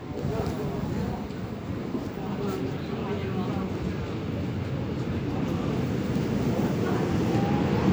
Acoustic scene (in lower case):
subway station